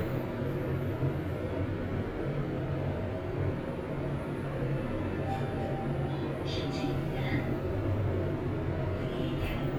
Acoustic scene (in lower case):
elevator